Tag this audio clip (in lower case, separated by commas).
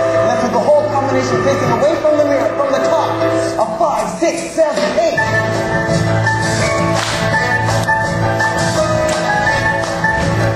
speech, music